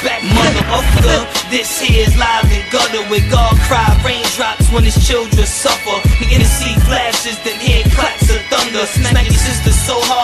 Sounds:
music

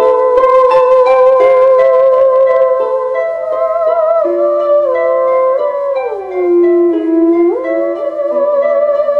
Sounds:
music
musical instrument
classical music
theremin

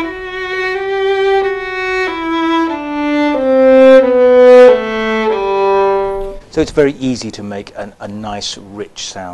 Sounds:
speech
music
violin
musical instrument

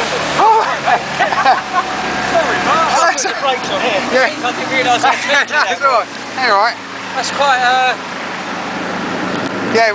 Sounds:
speech

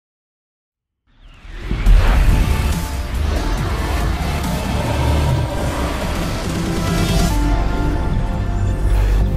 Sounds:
music

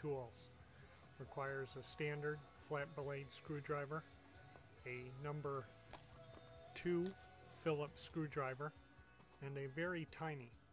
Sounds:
speech

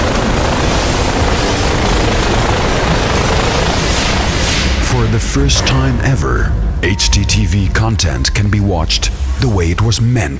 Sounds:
speech
music

